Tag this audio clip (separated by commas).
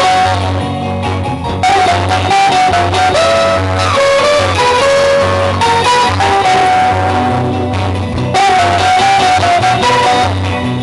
Guitar, Strum, Plucked string instrument, Music, Musical instrument